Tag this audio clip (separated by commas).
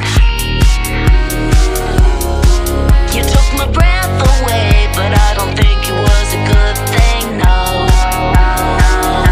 Music